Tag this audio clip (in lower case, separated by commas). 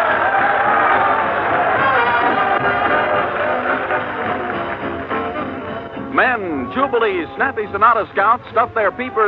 music, speech, orchestra